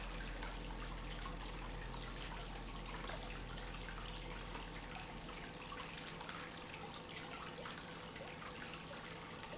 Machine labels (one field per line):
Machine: pump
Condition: normal